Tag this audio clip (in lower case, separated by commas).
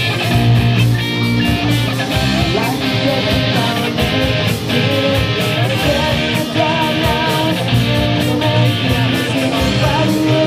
music, singing, inside a large room or hall